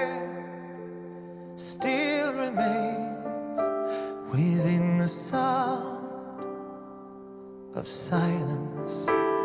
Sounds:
Music

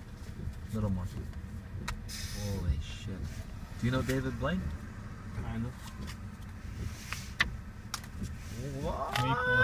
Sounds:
Vehicle, Speech

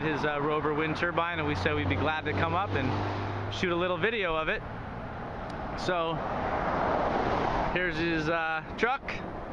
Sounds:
Speech

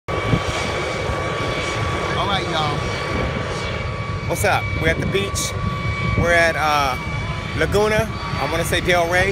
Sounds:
Ocean, Aircraft engine, Speech

